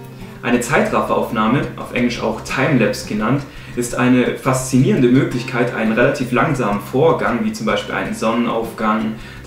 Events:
[0.00, 9.45] mechanisms
[0.00, 9.45] music
[0.16, 0.36] breathing
[0.41, 3.41] man speaking
[0.92, 1.42] surface contact
[1.75, 1.98] surface contact
[3.47, 3.72] breathing
[3.76, 9.11] man speaking
[5.38, 5.51] tick
[6.66, 6.88] surface contact
[8.55, 8.74] surface contact
[9.15, 9.40] breathing

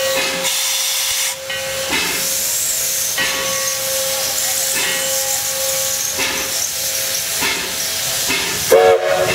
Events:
[0.00, 0.48] bell
[0.00, 9.34] train wagon
[0.10, 0.37] generic impact sounds
[0.39, 1.30] steam whistle
[1.29, 2.57] wind noise (microphone)
[1.45, 1.92] bell
[1.84, 2.18] generic impact sounds
[2.03, 8.75] steam whistle
[2.33, 2.85] human voice
[3.10, 3.45] generic impact sounds
[3.13, 3.76] bell
[3.95, 4.63] human voice
[4.72, 4.94] generic impact sounds
[4.73, 5.18] bell
[5.23, 5.39] human voice
[6.12, 6.43] generic impact sounds
[7.38, 7.61] generic impact sounds
[8.24, 8.57] generic impact sounds
[8.44, 8.94] wind noise (microphone)
[8.66, 9.34] train whistle
[9.08, 9.34] wind noise (microphone)

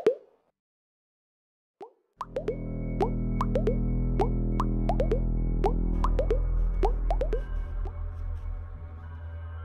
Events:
[0.00, 0.34] plop
[1.77, 1.98] plop
[2.13, 2.58] plop
[2.13, 9.64] music
[2.97, 3.10] plop
[3.36, 3.74] plop
[4.16, 4.29] plop
[4.54, 4.64] plop
[4.85, 5.18] plop
[5.59, 5.72] plop
[6.01, 6.39] plop
[6.79, 6.91] plop
[7.06, 7.42] plop
[7.79, 7.92] plop

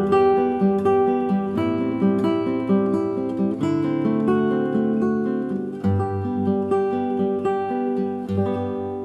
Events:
[0.01, 9.04] music

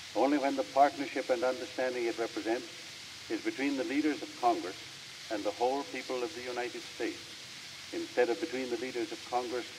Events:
[0.00, 9.75] noise
[0.12, 2.56] man speaking
[3.24, 4.71] man speaking
[5.24, 7.16] man speaking
[7.90, 9.64] man speaking

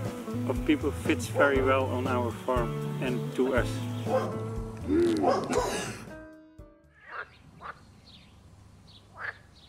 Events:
[0.03, 5.89] music
[0.39, 2.69] male speech
[2.91, 3.75] male speech
[3.94, 4.89] bark
[5.22, 6.08] cough
[6.94, 7.78] quack
[7.03, 9.65] chirp
[9.00, 9.54] quack

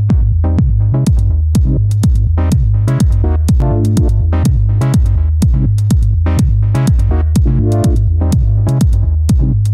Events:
[0.03, 9.73] music

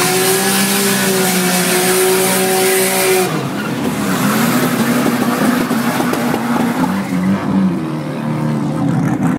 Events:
[0.00, 3.19] vroom
[0.00, 9.35] car
[7.86, 9.35] vroom

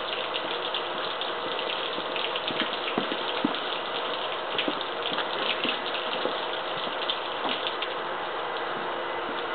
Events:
[0.00, 9.54] heavy engine (low frequency)
[0.00, 9.54] liquid
[2.48, 2.63] walk
[2.95, 3.12] walk
[3.39, 3.57] walk
[4.57, 4.70] walk
[5.08, 5.21] walk
[5.55, 5.73] walk
[6.21, 6.34] walk
[7.41, 7.57] walk
[8.57, 8.76] walk
[9.20, 9.37] walk

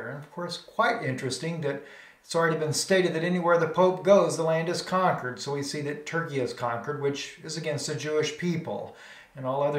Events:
[0.00, 1.80] male speech
[0.00, 9.75] background noise
[1.78, 2.26] breathing
[2.26, 8.90] male speech
[8.89, 9.32] breathing
[9.35, 9.75] male speech

